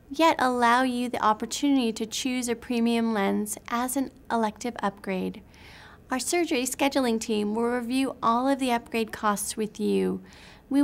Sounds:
speech

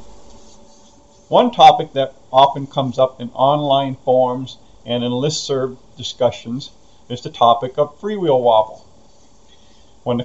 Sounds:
speech

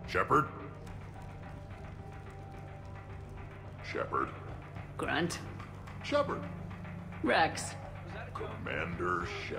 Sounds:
music
speech

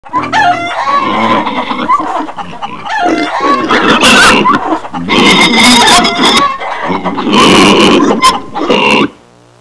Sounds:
grunt

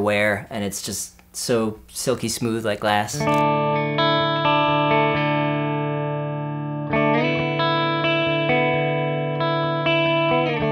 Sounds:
electric guitar
music
musical instrument
plucked string instrument
speech
guitar

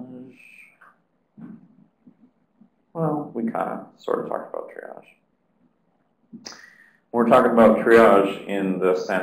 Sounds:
speech

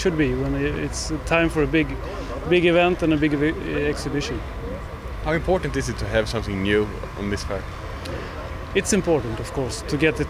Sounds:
speech

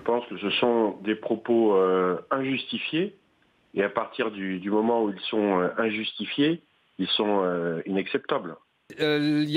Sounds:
speech

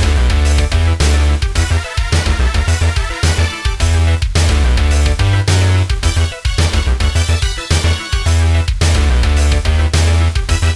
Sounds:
video game music
music

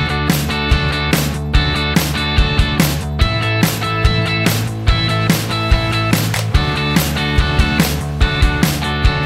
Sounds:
music

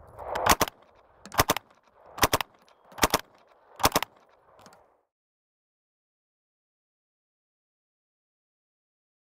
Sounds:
machine gun shooting

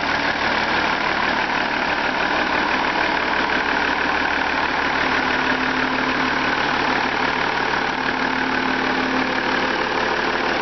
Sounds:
medium engine (mid frequency)
idling
engine

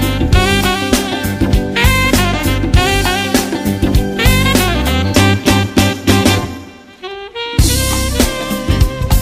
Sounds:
swing music

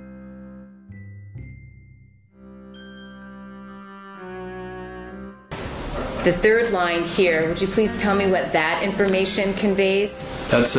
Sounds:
music
speech

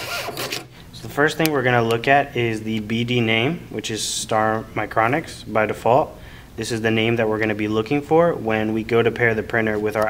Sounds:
speech
printer

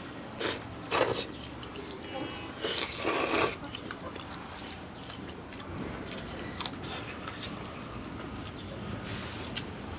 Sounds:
people eating noodle

